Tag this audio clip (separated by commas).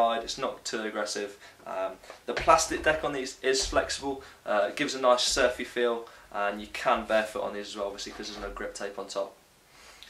Speech